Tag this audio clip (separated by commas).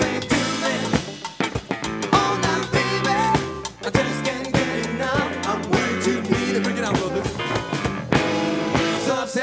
Speech, Rock music, Drum kit, Psychedelic rock, Musical instrument, Music